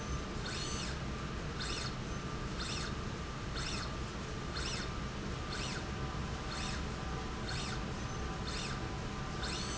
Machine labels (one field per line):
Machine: slide rail